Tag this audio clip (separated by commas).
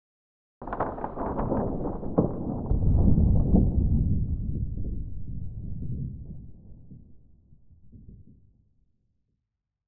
Thunder, Thunderstorm